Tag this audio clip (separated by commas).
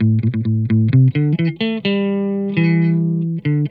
Plucked string instrument, Electric guitar, Guitar, Music, Musical instrument